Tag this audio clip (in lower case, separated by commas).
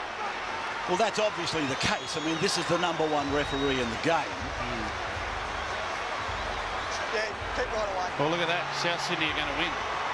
speech